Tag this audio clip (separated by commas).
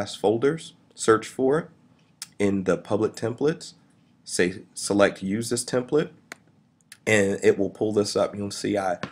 Speech